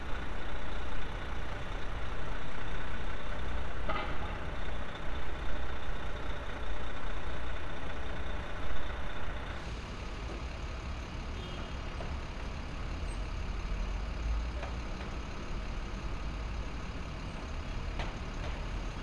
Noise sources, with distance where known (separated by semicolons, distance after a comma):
large-sounding engine, near